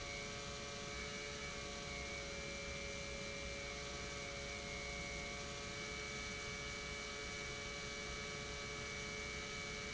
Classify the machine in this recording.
pump